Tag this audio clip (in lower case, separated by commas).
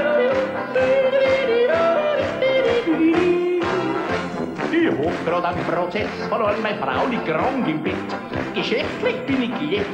music, yodeling